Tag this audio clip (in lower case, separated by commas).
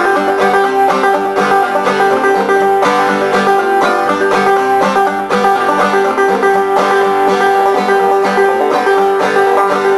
country, music, banjo, mandolin, bluegrass